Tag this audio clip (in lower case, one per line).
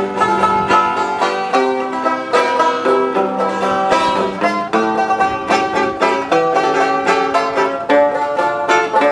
musical instrument
bluegrass
country
plucked string instrument
music
bowed string instrument
playing banjo
banjo